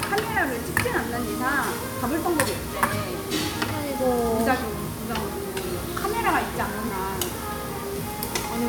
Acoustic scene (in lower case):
restaurant